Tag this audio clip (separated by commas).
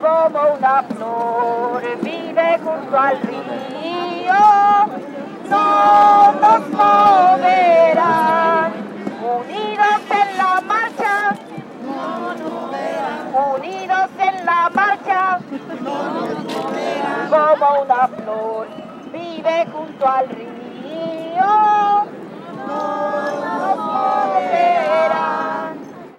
Singing, Human voice